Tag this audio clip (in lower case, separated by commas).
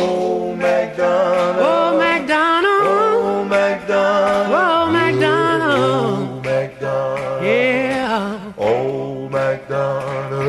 music